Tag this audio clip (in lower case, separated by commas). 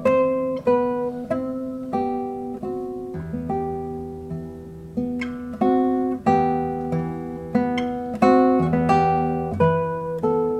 plucked string instrument, electric guitar, strum, music, musical instrument, guitar